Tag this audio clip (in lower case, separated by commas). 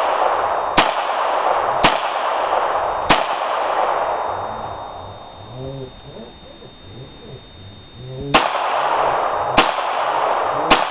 gunfire